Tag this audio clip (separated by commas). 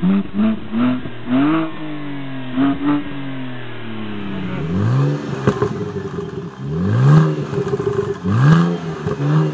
Sound effect